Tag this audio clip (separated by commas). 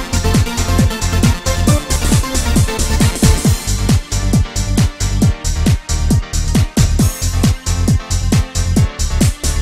Music